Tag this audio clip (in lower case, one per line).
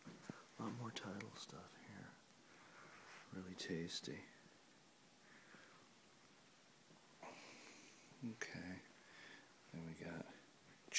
speech